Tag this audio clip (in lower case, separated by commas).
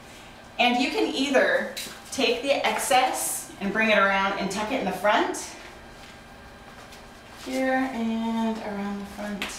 inside a small room, speech